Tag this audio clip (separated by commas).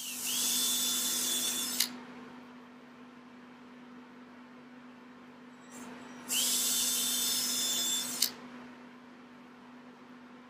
inside a small room, Drill